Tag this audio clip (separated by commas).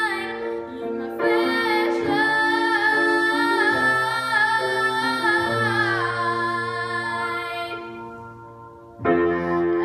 Classical music, Music, Singing, Musical instrument, Piano, Keyboard (musical)